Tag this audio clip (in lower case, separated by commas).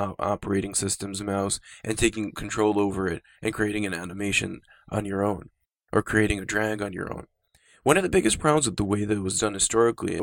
speech